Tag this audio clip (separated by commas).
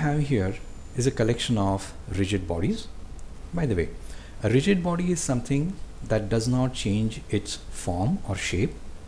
Speech